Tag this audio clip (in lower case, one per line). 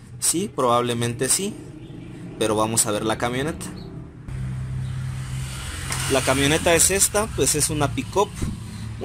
car engine idling